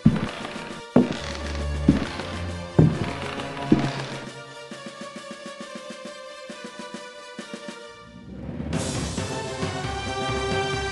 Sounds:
Music

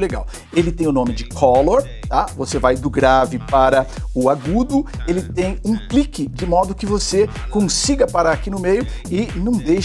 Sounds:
Speech, Music

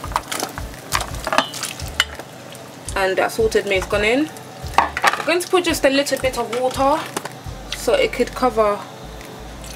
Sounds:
Water

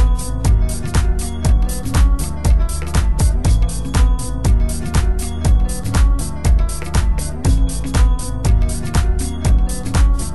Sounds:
Music, House music

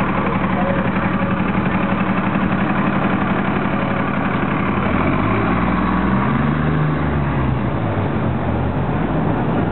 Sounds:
Bus, Vehicle, driving buses, Speech, outside, urban or man-made

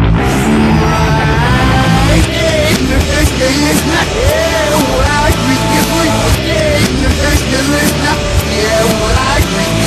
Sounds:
Music

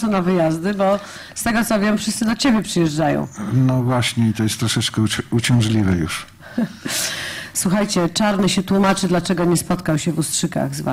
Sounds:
Speech

